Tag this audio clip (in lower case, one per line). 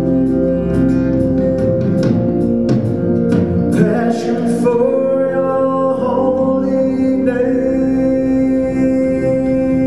inside a large room or hall
singing
music